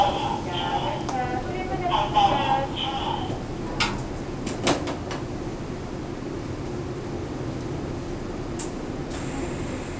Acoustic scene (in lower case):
subway station